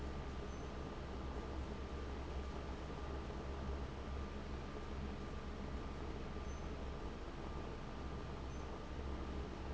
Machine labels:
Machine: fan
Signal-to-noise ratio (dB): 6 dB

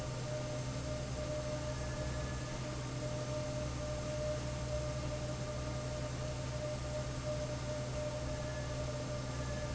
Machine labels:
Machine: fan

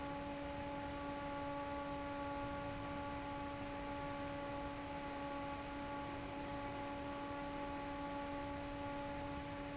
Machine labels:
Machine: fan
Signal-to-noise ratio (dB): 6 dB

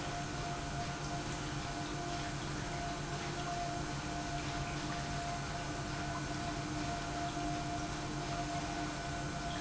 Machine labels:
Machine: pump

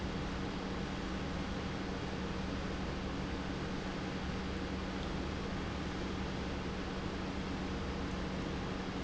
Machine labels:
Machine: pump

